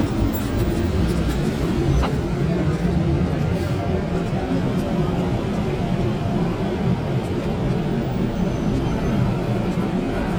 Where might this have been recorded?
on a subway train